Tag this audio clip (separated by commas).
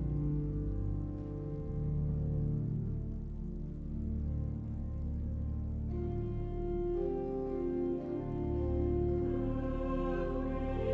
Music